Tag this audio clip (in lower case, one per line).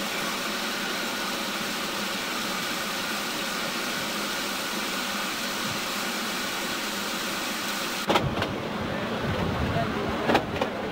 speech
train
rail transport
vehicle